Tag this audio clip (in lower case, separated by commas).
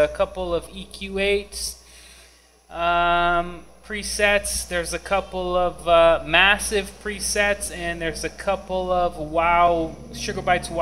speech